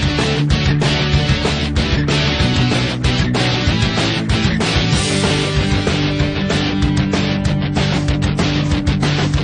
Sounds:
Music

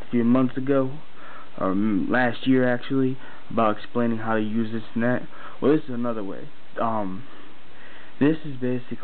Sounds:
Speech

